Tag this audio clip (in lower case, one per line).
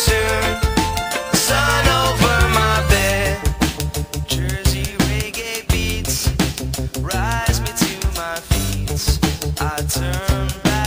music